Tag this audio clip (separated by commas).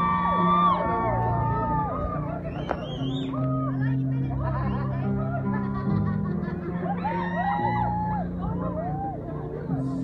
Speech, Music